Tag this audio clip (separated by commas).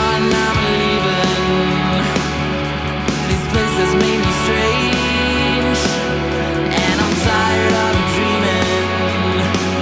Music, Rhythm and blues